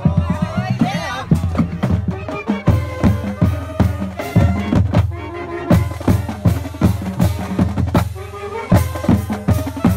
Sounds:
people marching

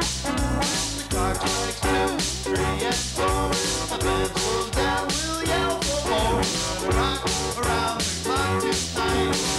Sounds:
blues, music

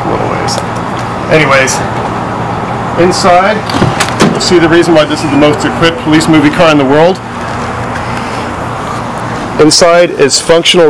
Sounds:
speech

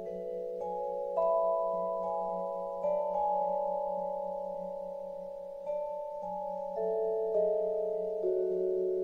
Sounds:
playing vibraphone, musical instrument, music, vibraphone

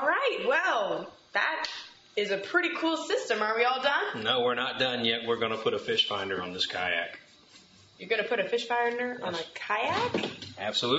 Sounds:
speech

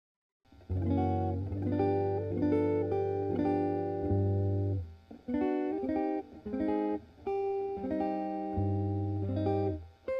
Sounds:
plucked string instrument, guitar, musical instrument, music

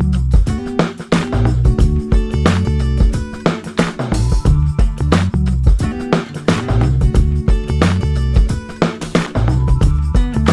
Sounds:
music

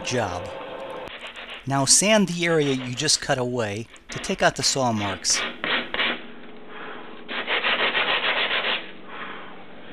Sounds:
speech

